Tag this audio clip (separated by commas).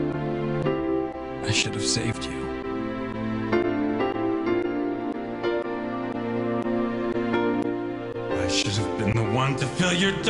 Speech, Music